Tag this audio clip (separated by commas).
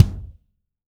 Musical instrument, Music, Bass drum, Drum, Percussion